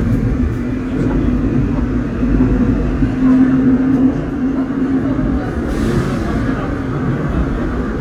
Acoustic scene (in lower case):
subway train